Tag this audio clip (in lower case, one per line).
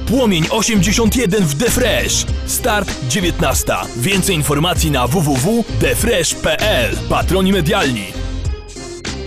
funk
music
speech